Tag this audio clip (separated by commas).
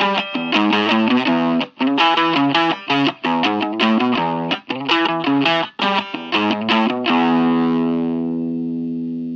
Guitar, Music